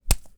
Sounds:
Hammer, Tools

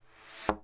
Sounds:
thud

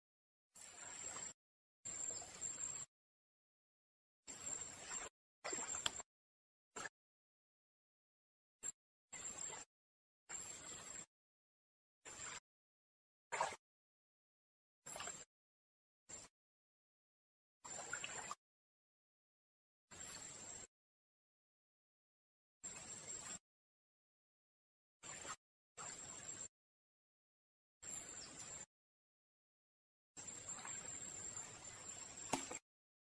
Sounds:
Rail transport, Human voice, Train, Vehicle

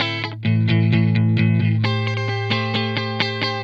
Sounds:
Plucked string instrument, Electric guitar, Music, Musical instrument, Guitar

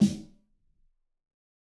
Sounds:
Music, Snare drum, Musical instrument, Percussion, Drum

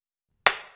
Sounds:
Tools, Hammer

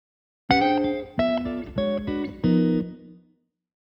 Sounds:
Guitar, Plucked string instrument, Music, Musical instrument

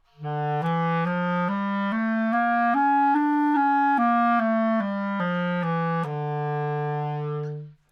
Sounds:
Music, Musical instrument, woodwind instrument

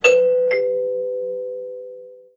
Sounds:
Door, Alarm, Domestic sounds, Doorbell

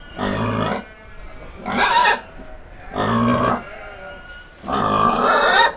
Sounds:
Animal, livestock

